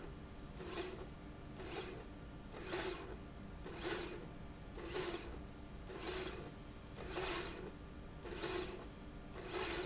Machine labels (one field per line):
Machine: slide rail